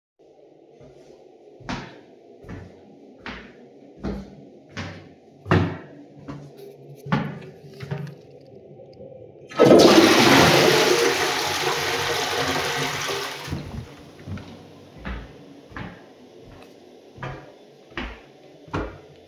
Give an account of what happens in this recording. I walked a few steps, flushed the toilet, and continued walking lightly before stopping the recording.